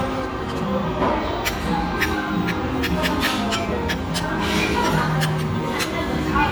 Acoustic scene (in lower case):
restaurant